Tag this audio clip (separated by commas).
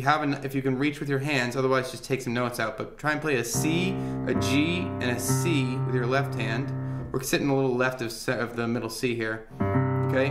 Speech, Music